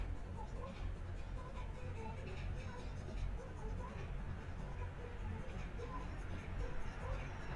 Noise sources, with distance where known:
music from an unclear source

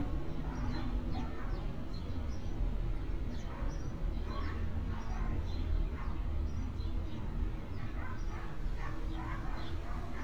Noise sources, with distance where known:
dog barking or whining, far

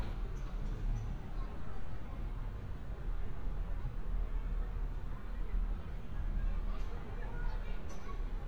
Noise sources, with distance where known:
person or small group talking, far

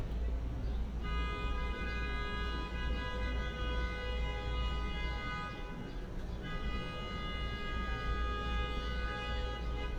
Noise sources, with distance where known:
car horn, near

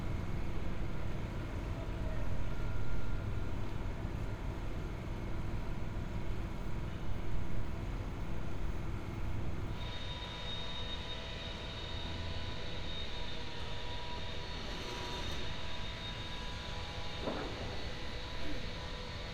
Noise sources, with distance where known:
engine of unclear size

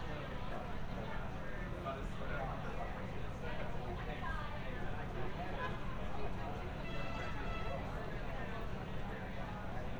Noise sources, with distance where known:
car horn; person or small group talking

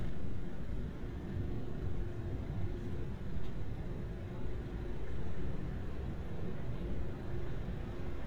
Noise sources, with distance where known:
small-sounding engine

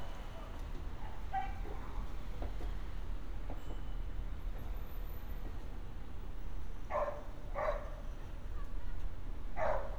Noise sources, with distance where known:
unidentified human voice; dog barking or whining, near

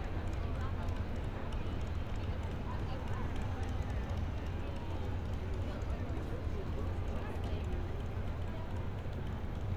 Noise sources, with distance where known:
unidentified human voice, near

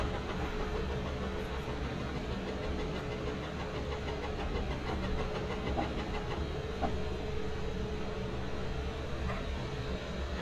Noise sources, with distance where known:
unidentified impact machinery

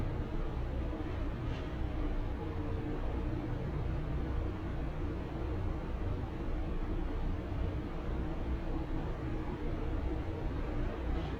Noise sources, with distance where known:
small-sounding engine

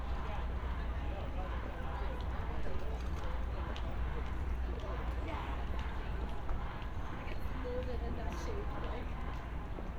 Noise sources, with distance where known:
person or small group shouting

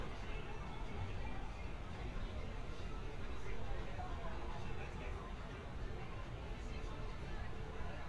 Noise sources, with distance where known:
music from a fixed source; person or small group talking

